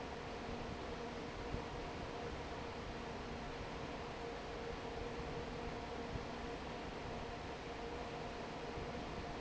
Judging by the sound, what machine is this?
fan